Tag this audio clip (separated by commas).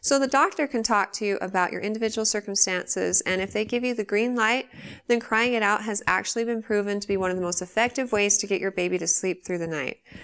Speech